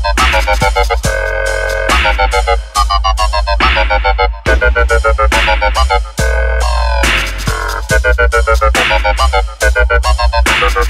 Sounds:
Electronic music, Sound effect, Music

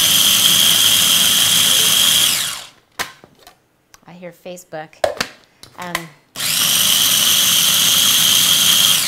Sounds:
inside a small room, Speech

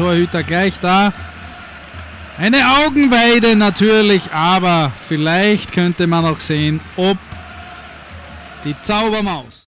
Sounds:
Speech

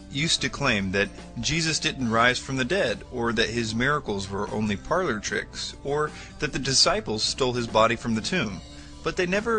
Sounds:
Music, Speech

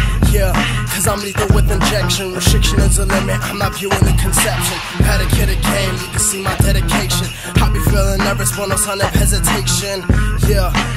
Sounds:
Jazz, Music

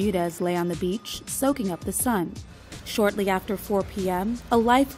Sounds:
Music, Speech

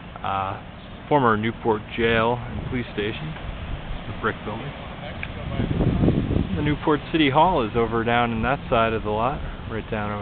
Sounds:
Speech

